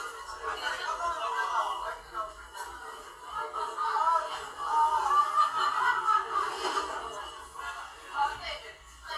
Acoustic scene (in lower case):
crowded indoor space